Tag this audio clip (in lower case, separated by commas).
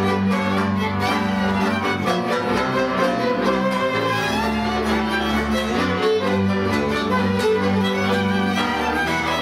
music, orchestra